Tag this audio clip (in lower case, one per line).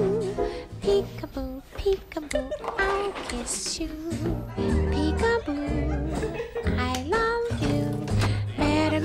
music